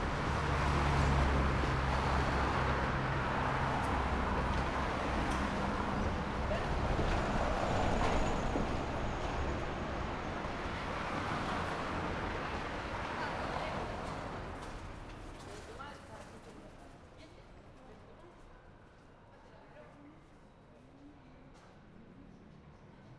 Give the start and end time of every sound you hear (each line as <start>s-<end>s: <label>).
0.0s-16.3s: car
0.0s-16.3s: car wheels rolling
0.7s-2.8s: car engine accelerating
3.6s-11.0s: bus
3.6s-11.0s: bus wheels rolling
4.8s-6.2s: bus brakes
7.7s-9.8s: bus brakes
13.0s-23.2s: people talking